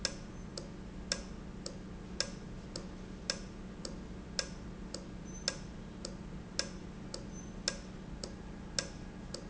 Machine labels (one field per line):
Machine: valve